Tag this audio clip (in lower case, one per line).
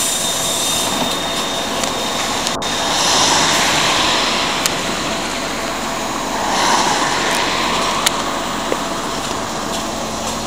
bus
vehicle
driving buses